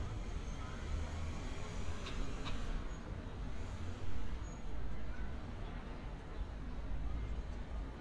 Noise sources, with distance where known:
engine of unclear size

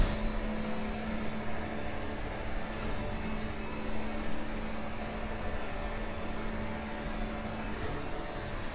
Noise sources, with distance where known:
engine of unclear size, far

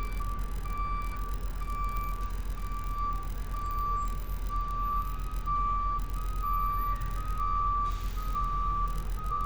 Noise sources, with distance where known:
unidentified alert signal, near

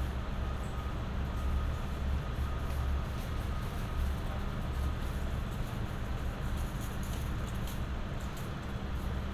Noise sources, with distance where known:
medium-sounding engine, near; reverse beeper, far

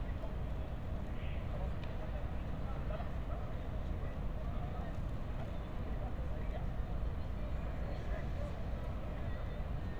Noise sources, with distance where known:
person or small group talking

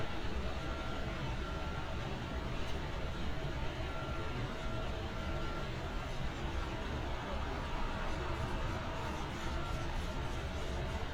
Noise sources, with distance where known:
large-sounding engine, far

